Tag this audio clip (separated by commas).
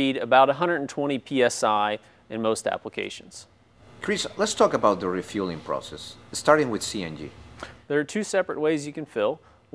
Speech